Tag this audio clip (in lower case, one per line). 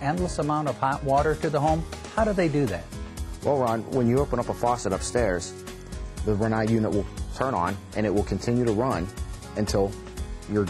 speech
music